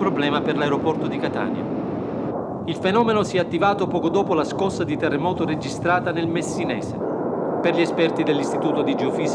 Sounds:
speech, eruption

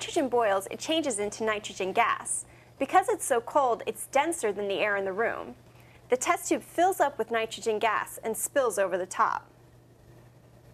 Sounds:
speech

